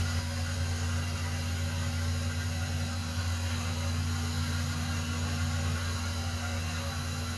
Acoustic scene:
restroom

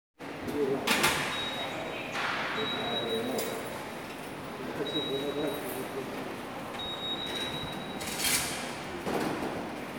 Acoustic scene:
subway station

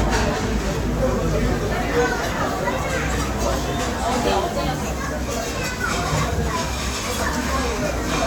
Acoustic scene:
restaurant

